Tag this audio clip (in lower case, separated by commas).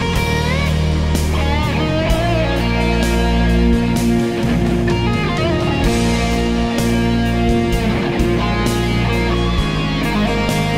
music